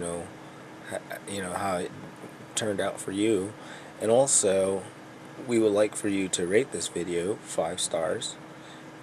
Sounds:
Speech

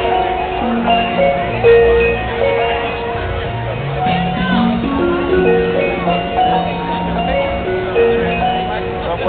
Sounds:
Speech, Music

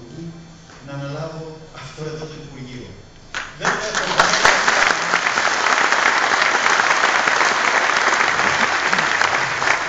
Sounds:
Speech, Male speech

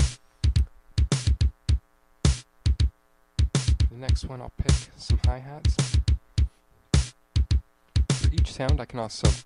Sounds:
Drum, Drum kit, Musical instrument, Speech, Bass drum, Music

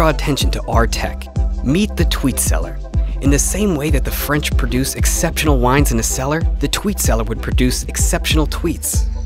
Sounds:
Speech, Music

